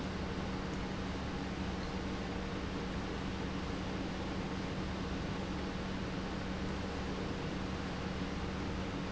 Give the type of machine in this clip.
pump